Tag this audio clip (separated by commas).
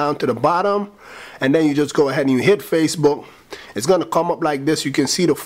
Speech